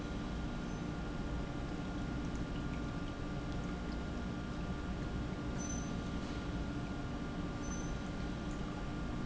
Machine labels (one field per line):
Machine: pump